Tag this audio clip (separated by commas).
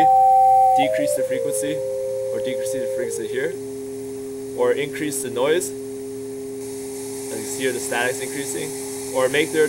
Music, Radio, Speech